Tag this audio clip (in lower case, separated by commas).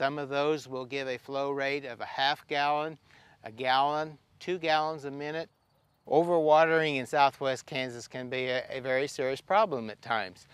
speech